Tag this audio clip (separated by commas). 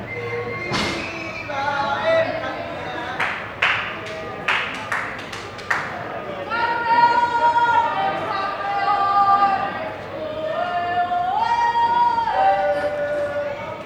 Human voice, Cheering, Shout, Human group actions